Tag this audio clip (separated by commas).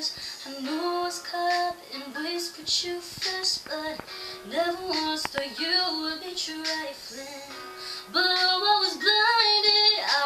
Music, Female singing